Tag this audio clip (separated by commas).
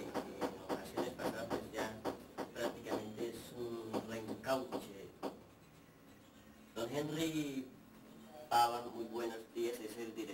Radio, Speech